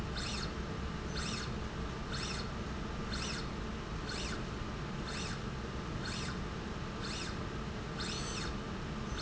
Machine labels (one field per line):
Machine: slide rail